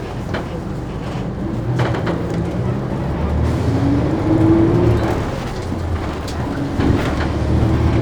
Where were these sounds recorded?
on a bus